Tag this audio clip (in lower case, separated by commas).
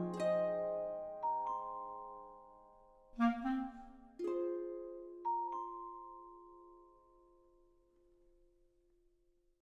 music